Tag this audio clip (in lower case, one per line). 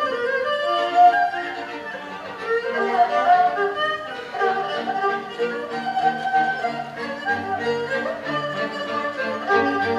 playing erhu